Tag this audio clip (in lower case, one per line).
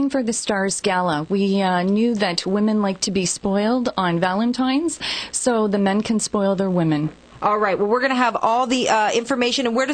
speech